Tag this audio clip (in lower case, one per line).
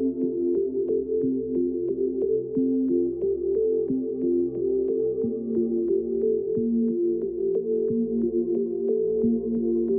background music
music